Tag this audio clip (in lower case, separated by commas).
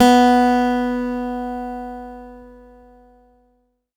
acoustic guitar, guitar, musical instrument, plucked string instrument, music